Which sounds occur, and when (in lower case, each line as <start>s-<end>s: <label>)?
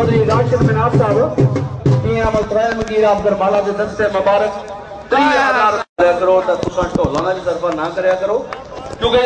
0.0s-1.6s: man speaking
0.0s-5.8s: wind
1.8s-4.5s: man speaking
5.1s-5.8s: man speaking
6.0s-9.2s: wind
6.0s-8.5s: man speaking
6.5s-7.1s: noise
8.7s-9.2s: noise